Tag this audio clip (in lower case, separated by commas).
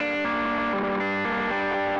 plucked string instrument, music, guitar, musical instrument